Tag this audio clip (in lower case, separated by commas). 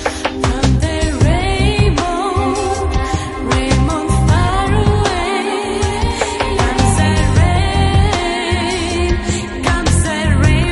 music